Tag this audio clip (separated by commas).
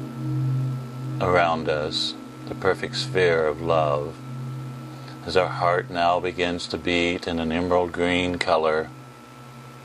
Speech